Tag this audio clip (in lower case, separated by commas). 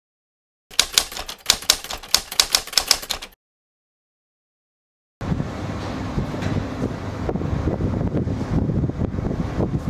typewriter